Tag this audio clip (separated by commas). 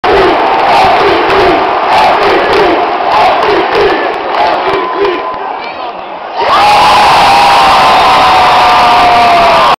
Speech